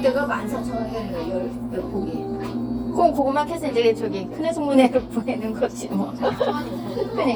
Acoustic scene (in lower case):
cafe